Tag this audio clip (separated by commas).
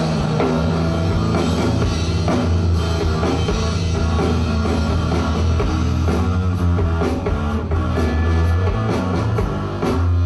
Drum kit, Music, Musical instrument